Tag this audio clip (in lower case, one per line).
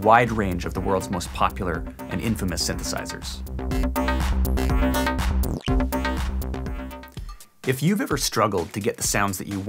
music
speech